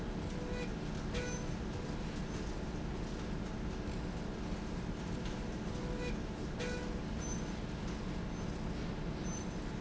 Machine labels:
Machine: slide rail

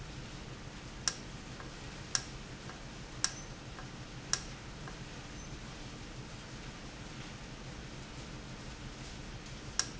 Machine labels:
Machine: valve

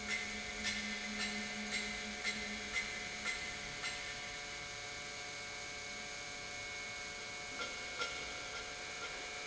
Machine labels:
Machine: pump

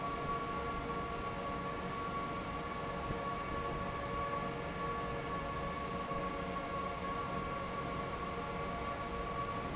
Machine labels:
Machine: fan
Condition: normal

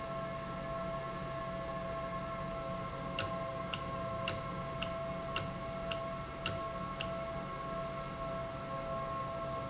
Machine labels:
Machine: valve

